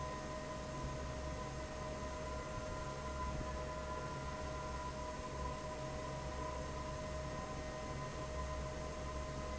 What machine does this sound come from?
fan